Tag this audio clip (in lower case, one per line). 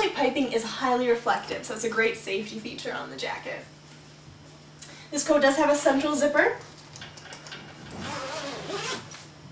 speech